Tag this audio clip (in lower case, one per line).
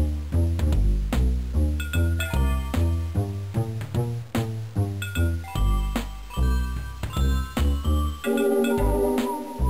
music